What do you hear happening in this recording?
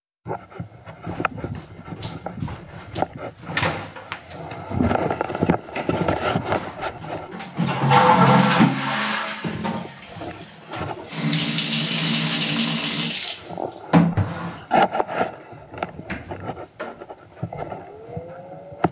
I walk into the restroom and switch on the light. After the toilet is flushed, the tap is turned on to wash the hands.